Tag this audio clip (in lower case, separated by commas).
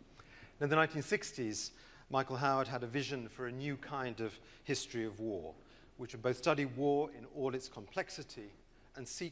speech